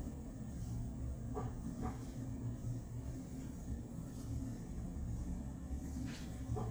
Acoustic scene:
elevator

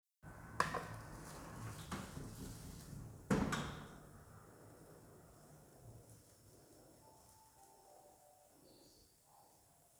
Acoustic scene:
elevator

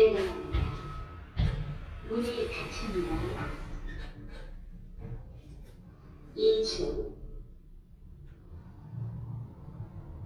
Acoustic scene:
elevator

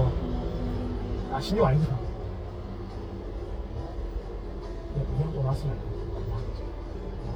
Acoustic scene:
car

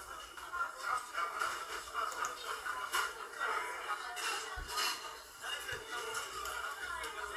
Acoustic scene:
crowded indoor space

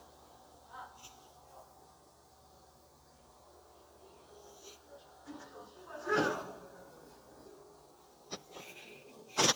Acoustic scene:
residential area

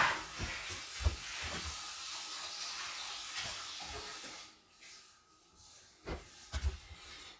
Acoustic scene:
restroom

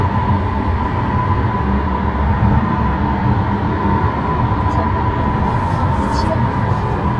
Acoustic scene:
car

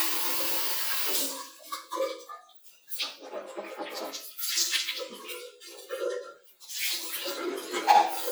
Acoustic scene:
restroom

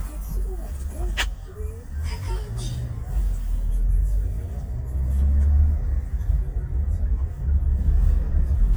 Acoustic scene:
car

